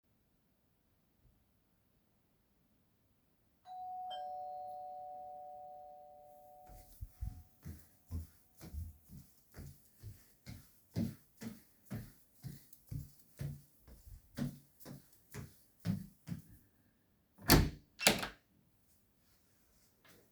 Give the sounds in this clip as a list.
bell ringing, footsteps, door